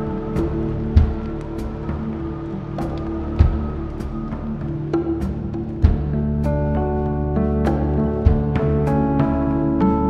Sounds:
music

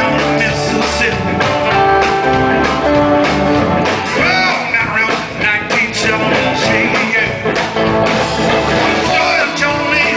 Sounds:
electric guitar, acoustic guitar, musical instrument, strum, music, bass guitar, plucked string instrument, blues, guitar

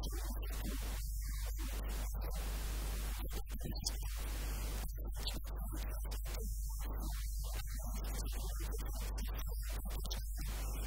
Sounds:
speech

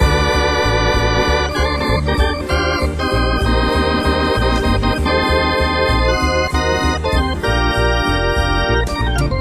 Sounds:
playing hammond organ

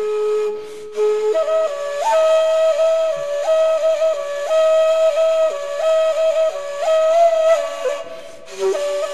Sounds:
tender music, flute, music

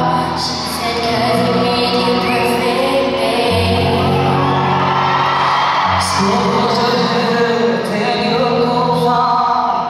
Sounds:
music, inside a large room or hall, singing

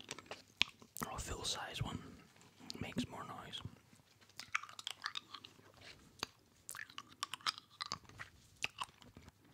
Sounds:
speech, crunch

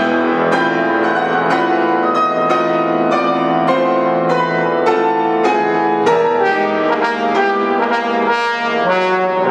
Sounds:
playing trombone, trombone, brass instrument

